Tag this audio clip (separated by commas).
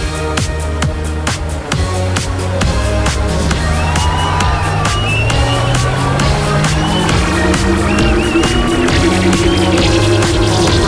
Music, Dance music